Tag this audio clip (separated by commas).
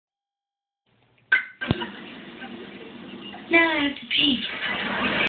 Speech